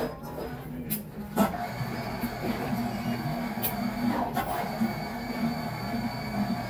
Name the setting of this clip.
cafe